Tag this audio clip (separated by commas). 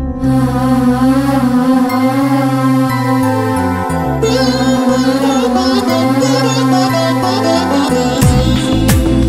Music, Carnatic music